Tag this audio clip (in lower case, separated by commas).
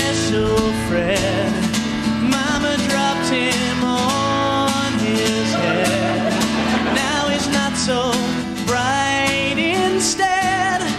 music